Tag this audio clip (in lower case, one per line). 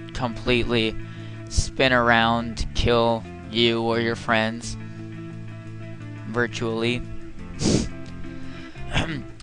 speech
music